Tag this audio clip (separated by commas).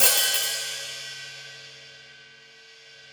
Cymbal, Musical instrument, Hi-hat, Music, Percussion